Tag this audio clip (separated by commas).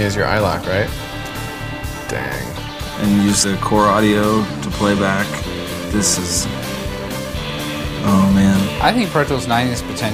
Speech, Music